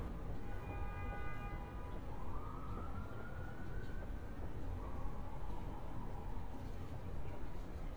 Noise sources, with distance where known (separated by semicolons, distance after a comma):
car horn, far; siren, far